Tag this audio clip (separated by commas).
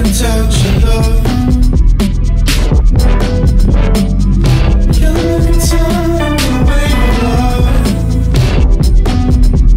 Grunge, Music